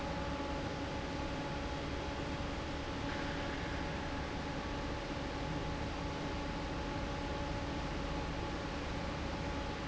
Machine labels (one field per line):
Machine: fan